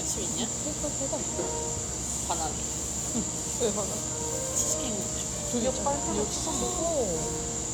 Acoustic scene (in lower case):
cafe